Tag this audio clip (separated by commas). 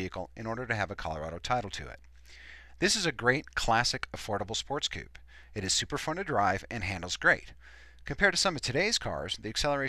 Speech